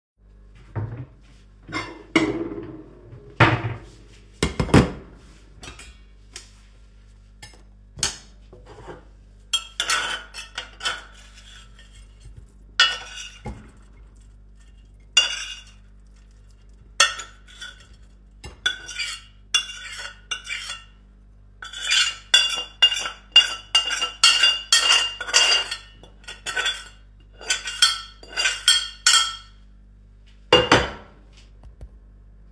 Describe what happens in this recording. I took a plate out of a drawer. I placed my food on the plate from a pan.